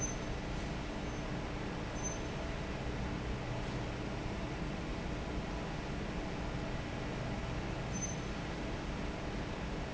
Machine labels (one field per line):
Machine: fan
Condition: normal